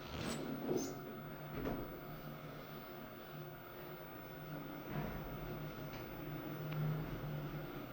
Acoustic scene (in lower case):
elevator